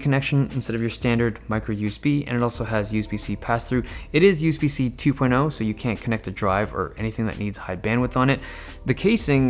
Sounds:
typing on typewriter

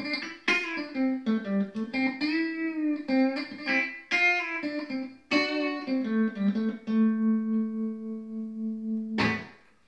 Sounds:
Guitar, Music, Musical instrument, Plucked string instrument, Strum

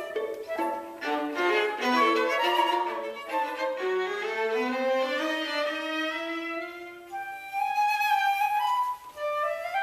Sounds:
fiddle, Musical instrument, Music

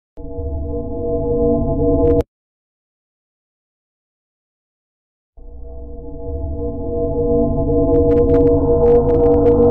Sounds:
Music, Silence

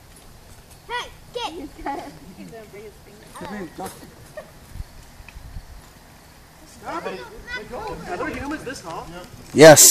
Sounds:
Speech

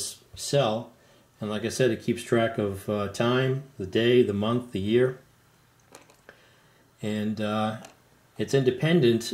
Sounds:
Speech, inside a small room

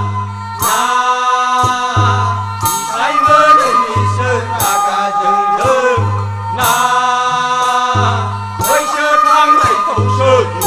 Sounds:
Folk music, Music

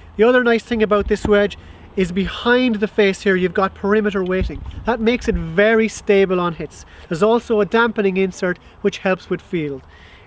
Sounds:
Speech

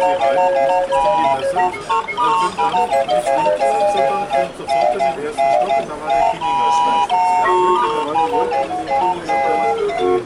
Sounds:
Music, Speech

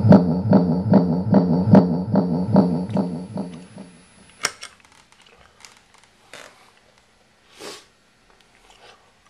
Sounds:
Distortion, Effects unit, Music

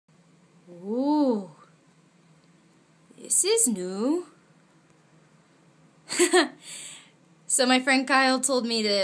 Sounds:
Speech, inside a small room

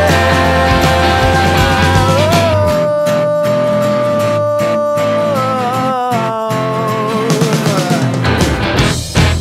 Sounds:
Music, Grunge

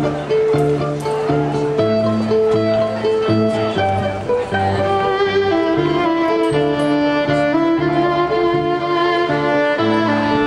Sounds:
Music, Musical instrument, Violin

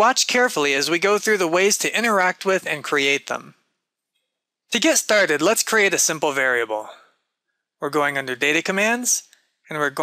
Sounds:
Speech

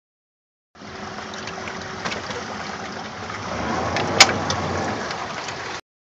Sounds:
Boat, canoe, Vehicle, Motorboat

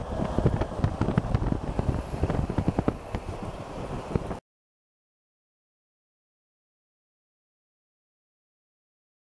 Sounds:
Vehicle, Truck

